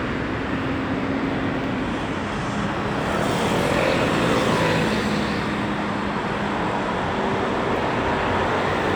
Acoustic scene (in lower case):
street